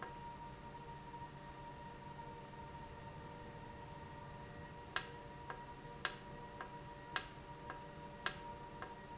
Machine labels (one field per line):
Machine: valve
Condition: normal